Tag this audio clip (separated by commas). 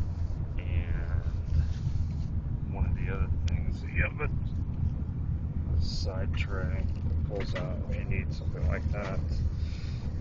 Speech